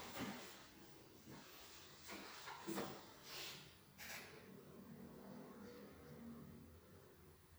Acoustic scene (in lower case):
elevator